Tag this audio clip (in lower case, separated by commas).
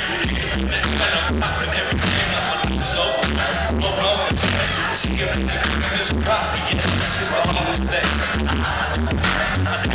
music